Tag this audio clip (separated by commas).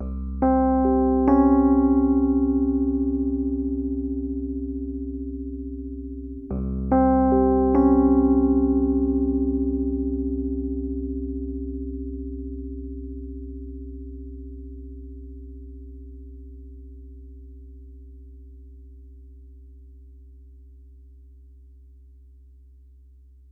Musical instrument, Music, Keyboard (musical), Piano